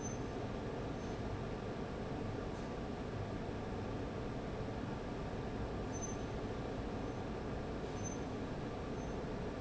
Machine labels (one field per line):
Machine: fan